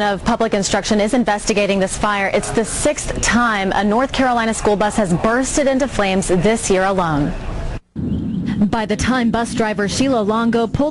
An adult female is speaking, and roaring occurs, and birds are chirping